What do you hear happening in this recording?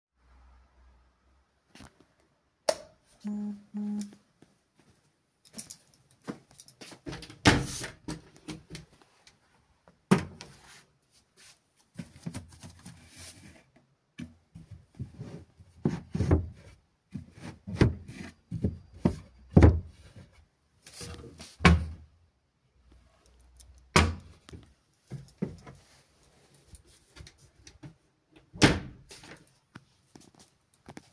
I turned light switch on, then walked to the wardrobe, I opened the wardrobe, and finally I closed wardrobe.